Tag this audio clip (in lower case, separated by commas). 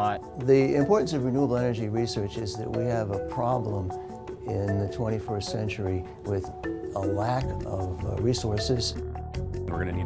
music, speech